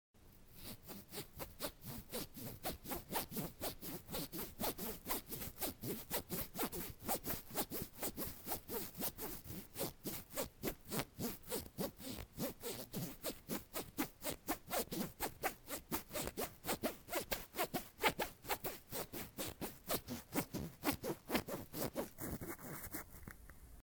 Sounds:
sawing, tools

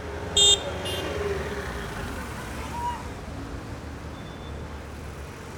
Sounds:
vehicle, motor vehicle (road)

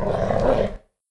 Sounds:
domestic animals, dog, animal, growling

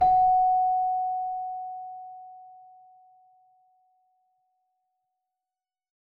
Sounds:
keyboard (musical), music, musical instrument

